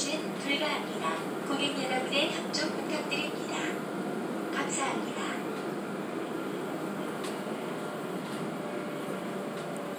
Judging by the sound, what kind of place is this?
subway train